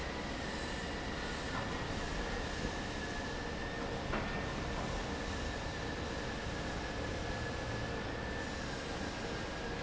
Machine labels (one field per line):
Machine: fan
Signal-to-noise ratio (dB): -6 dB